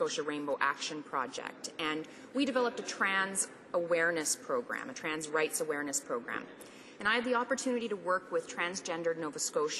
A female adult is speaking